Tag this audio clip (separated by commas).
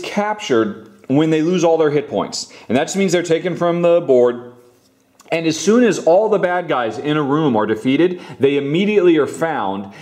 Speech